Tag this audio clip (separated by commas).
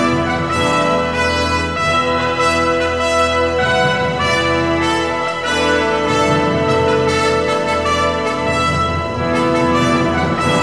Music